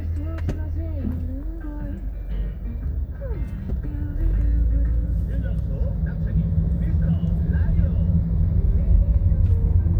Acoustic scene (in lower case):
car